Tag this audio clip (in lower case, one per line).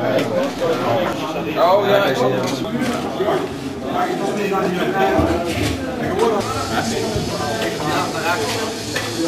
speech